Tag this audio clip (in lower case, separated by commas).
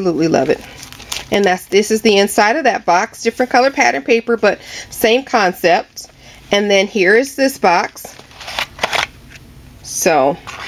speech